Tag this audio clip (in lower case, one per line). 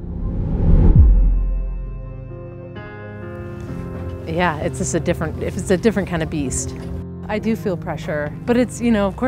music
outside, rural or natural
speech